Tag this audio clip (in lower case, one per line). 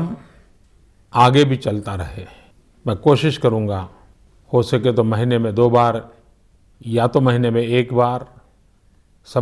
speech